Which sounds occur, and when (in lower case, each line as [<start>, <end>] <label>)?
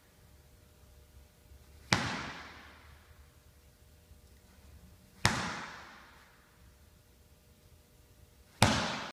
[0.00, 9.11] background noise
[1.90, 2.79] slam
[5.21, 6.32] slam
[8.58, 9.11] slam